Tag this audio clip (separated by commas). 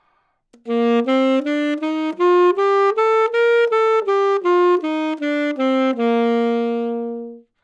Music, Musical instrument, woodwind instrument